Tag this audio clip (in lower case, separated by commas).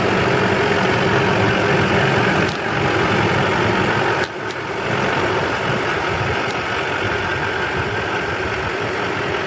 vehicle, car